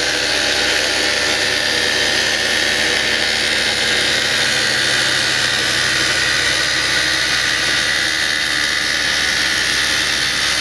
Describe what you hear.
A drill is being used